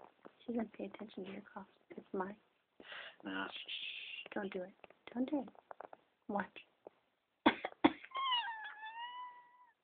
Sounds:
speech

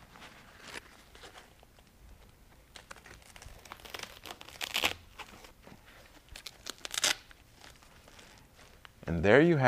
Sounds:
speech, inside a small room, crumpling

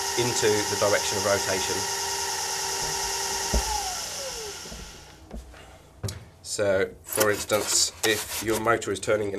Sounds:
inside a small room, speech

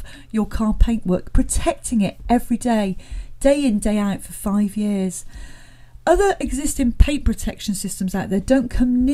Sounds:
speech

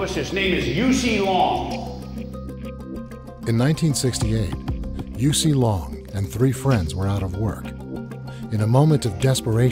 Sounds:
speech, music

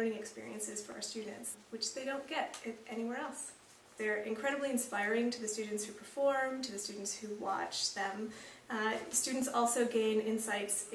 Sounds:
speech

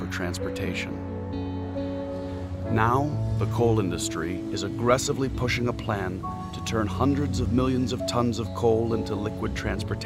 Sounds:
music, speech

